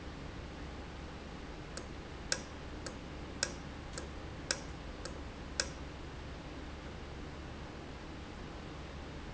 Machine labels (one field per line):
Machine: valve